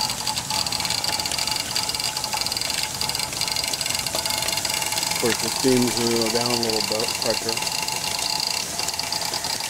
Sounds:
Water, Pump (liquid)

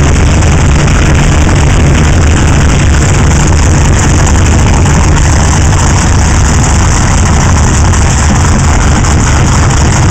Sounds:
Water vehicle, Motorboat

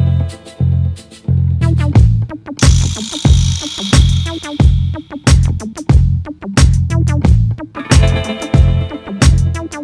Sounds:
Music

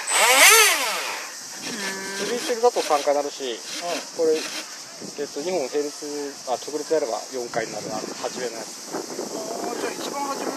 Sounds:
Speech

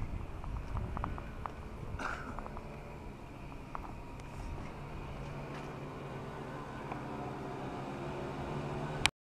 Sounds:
Vehicle

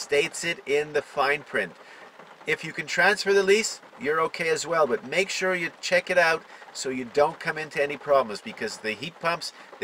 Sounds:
Speech

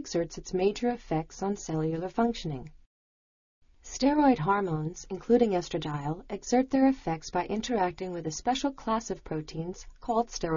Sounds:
Speech

